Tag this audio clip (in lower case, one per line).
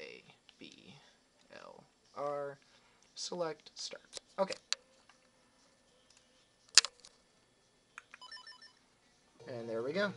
speech